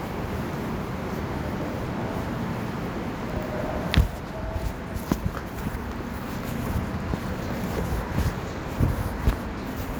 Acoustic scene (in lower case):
subway station